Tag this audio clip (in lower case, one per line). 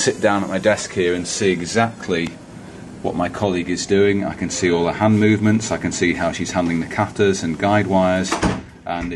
speech